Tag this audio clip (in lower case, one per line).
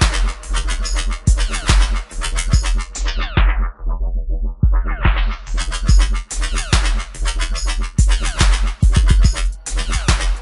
music
dubstep